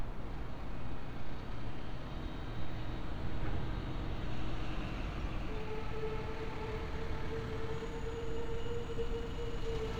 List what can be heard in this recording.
engine of unclear size